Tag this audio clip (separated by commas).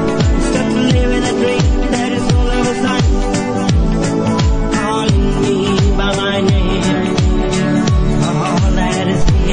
Music